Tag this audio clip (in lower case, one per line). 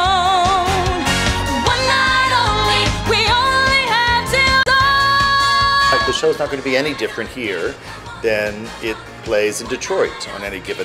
music
speech